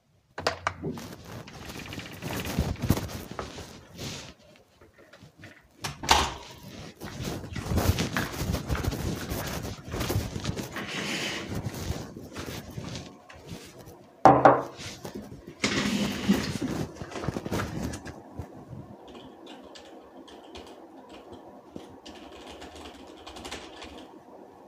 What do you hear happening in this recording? I opened the door, walked inside the room and closed the door. I walked to the desk, rolled back the chair, sat down and put down the mug. I moved closer to the desk and started typing.